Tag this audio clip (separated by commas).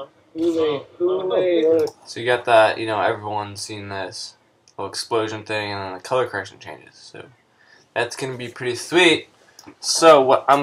Speech